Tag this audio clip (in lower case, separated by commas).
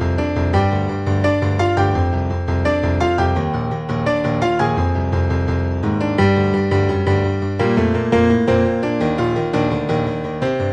music